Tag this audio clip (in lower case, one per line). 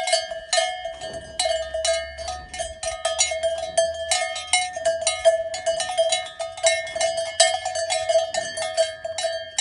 bovinae cowbell